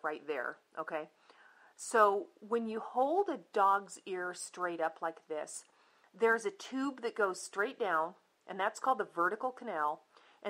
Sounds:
Speech

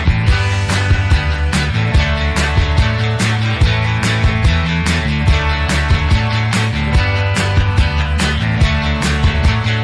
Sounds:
Music

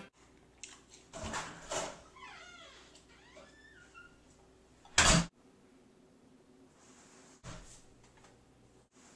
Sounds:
inside a small room, Speech

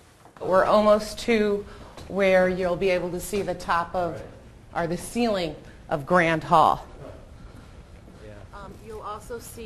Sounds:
Female speech

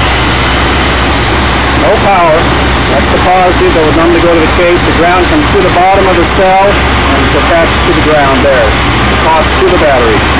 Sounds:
Engine, Speech

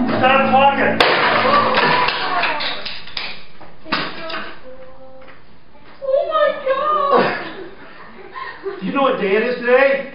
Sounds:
Speech, Violin, Music, Musical instrument

